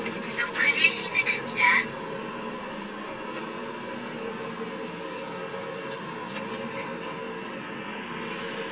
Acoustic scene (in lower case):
car